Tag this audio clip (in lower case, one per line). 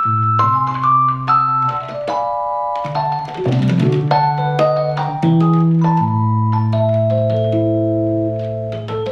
keyboard (musical)
electric piano
piano